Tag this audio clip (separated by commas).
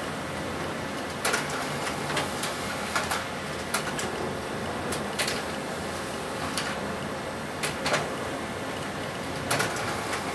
Printer